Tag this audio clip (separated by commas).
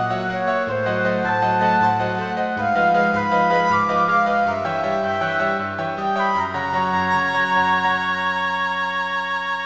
Music